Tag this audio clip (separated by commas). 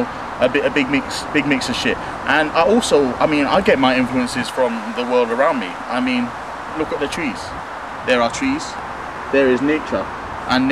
Speech